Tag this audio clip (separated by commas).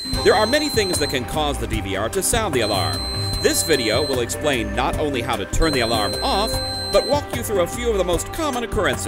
Music, Speech